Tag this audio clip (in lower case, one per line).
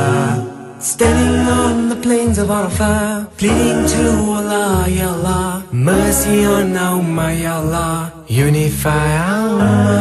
music